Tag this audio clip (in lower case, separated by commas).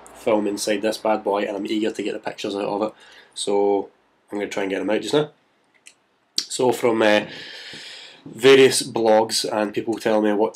speech